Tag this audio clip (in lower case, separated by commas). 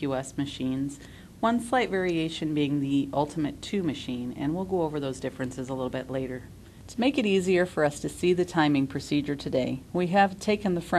speech